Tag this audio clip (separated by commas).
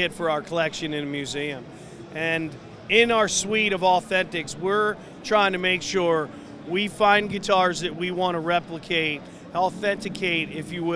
Speech